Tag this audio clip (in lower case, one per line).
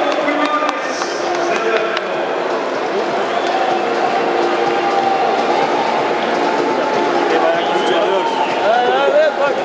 music
speech